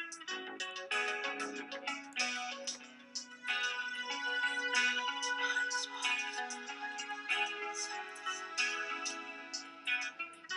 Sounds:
music

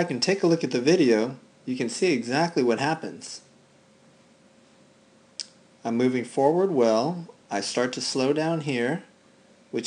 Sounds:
speech

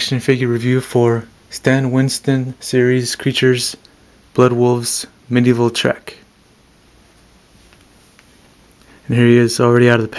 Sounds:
speech

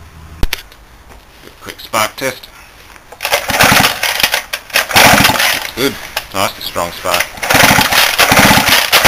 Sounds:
speech

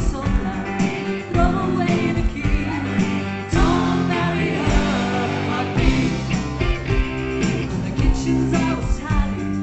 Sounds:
music
psychedelic rock
rock music

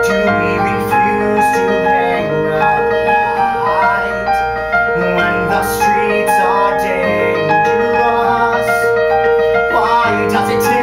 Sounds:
music

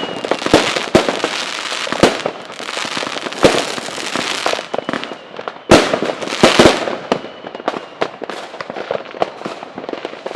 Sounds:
lighting firecrackers

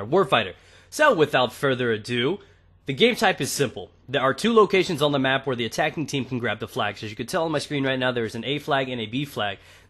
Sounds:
speech

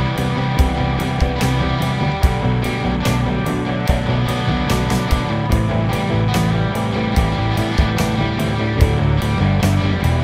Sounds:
music

